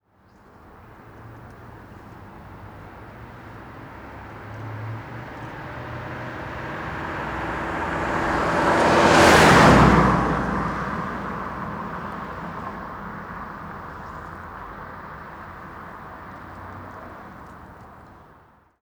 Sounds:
car
car passing by
vehicle
motor vehicle (road)

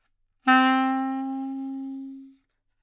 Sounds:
music
musical instrument
wind instrument

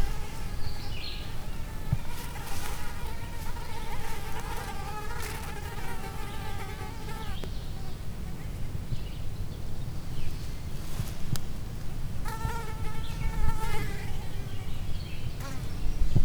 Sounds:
animal
wild animals
insect

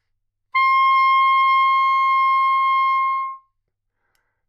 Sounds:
music
musical instrument
wind instrument

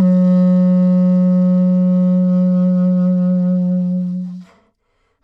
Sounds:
music
musical instrument
wind instrument

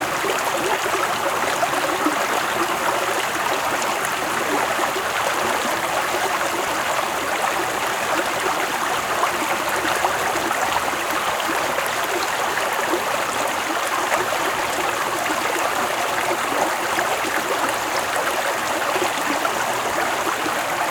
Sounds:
stream
water

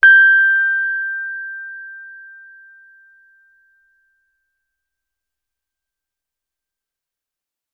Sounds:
piano
musical instrument
music
keyboard (musical)

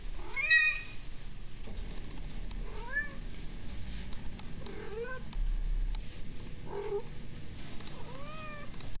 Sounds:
domestic animals
cat
animal

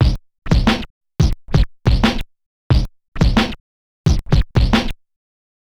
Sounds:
scratching (performance technique)
musical instrument
music

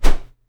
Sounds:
swish

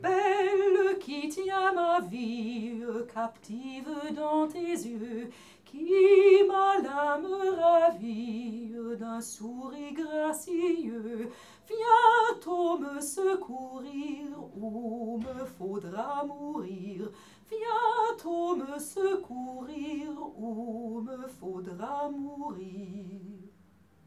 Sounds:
drip
liquid

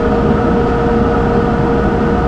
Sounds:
vehicle
rail transport
train

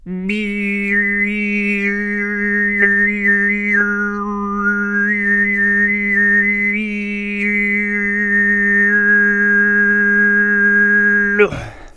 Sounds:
singing
human voice

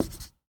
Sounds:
home sounds
writing

